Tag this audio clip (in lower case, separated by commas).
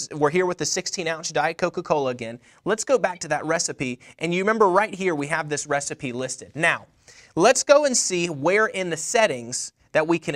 speech